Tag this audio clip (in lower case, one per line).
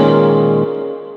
musical instrument
music
keyboard (musical)